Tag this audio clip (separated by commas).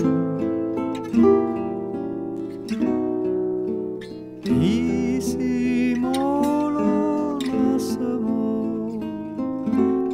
Music, Lullaby